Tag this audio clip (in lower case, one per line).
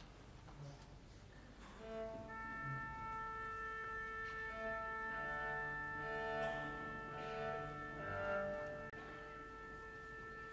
musical instrument
music
cello